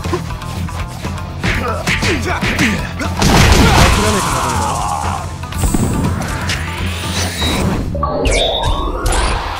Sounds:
Speech, Music

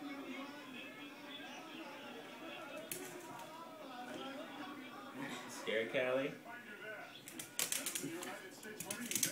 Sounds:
Speech

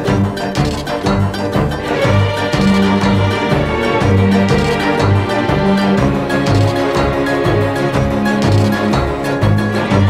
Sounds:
Soundtrack music, Music

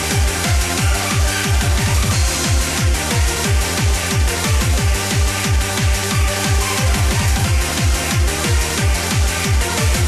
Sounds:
Techno, Music, Electronic music

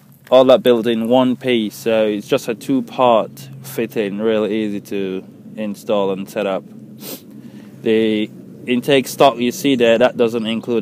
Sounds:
Speech

